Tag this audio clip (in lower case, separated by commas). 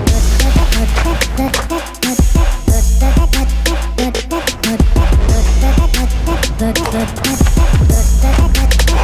music, outside, urban or man-made, run